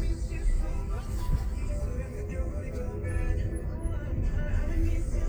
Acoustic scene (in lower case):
car